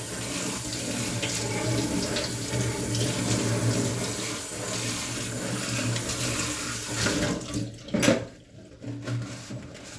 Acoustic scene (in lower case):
kitchen